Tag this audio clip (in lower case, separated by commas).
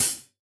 percussion, music, cymbal, musical instrument, hi-hat